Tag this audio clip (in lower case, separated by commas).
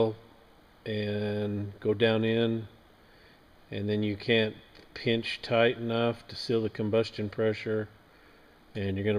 speech